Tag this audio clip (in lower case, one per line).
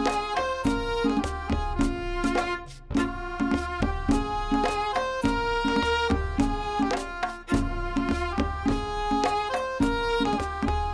traditional music
music